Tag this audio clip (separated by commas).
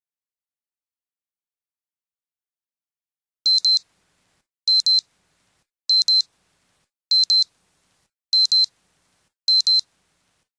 Silence